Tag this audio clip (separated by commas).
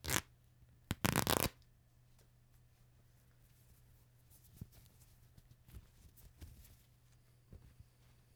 Tearing